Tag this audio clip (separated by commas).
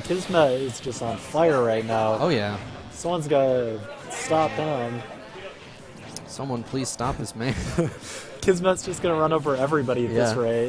Speech